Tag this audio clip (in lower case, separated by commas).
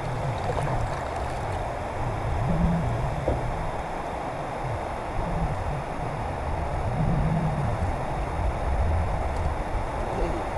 wind